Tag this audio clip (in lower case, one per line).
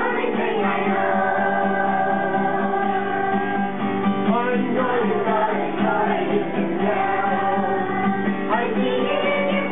music